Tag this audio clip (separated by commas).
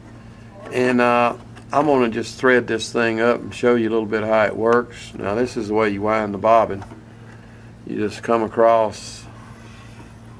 Speech